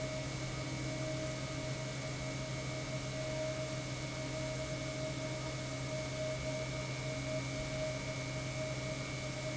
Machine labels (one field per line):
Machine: pump